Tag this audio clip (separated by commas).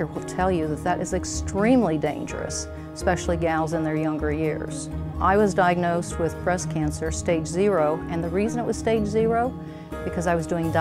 Speech, Music